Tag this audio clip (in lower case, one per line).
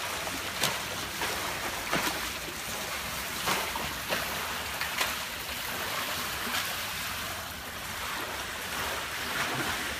swimming